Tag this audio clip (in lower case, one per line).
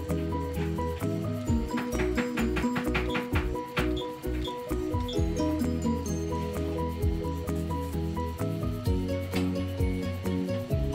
music